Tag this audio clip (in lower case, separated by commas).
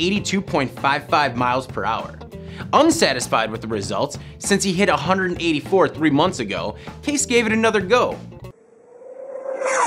speech, music, inside a small room